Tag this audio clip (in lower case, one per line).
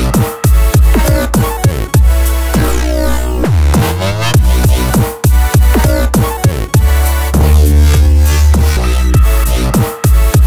sound effect
music